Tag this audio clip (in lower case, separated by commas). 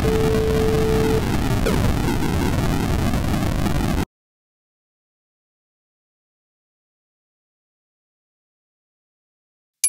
eruption